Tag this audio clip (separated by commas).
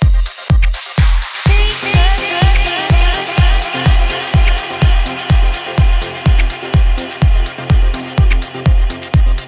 Music